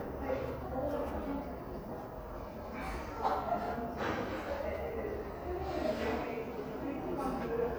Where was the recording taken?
in a crowded indoor space